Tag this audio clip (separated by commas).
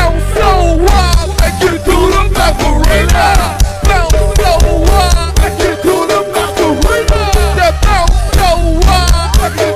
Music, Hip hop music